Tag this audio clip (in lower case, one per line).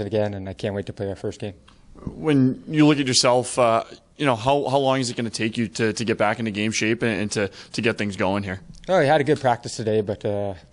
speech